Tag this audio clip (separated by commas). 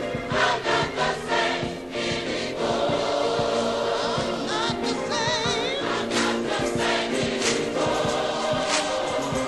Music, Gospel music